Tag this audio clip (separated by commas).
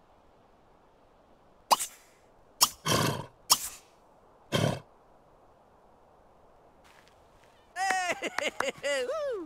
Animal